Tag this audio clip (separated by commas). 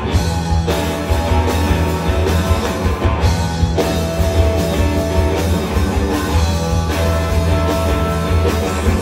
Exciting music, Blues, Rhythm and blues, Music